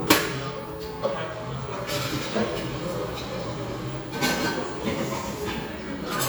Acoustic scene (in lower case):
cafe